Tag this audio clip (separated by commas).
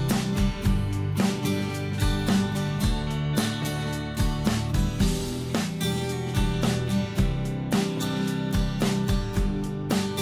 Music